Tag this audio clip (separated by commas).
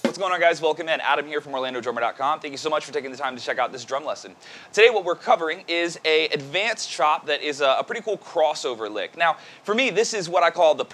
Speech